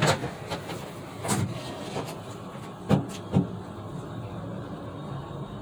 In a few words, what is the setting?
elevator